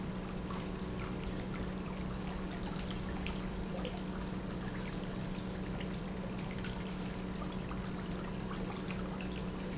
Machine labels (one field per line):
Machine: pump